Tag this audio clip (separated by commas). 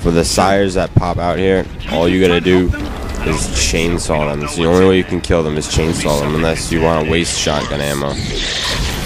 Speech, Music